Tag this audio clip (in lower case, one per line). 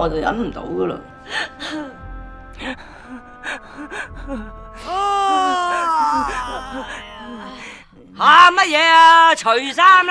music
speech